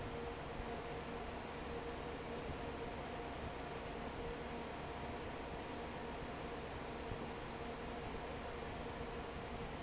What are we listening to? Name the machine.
fan